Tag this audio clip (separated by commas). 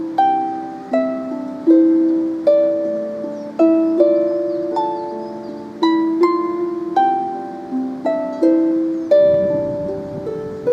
Harp, Folk music, Plucked string instrument, Musical instrument, playing harp, Music